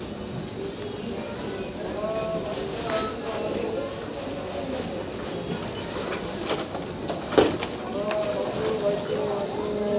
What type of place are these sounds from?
crowded indoor space